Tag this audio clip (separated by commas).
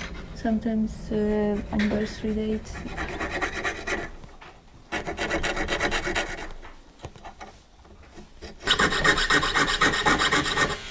Speech